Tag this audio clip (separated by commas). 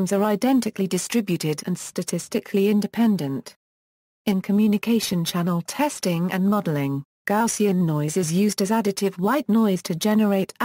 Speech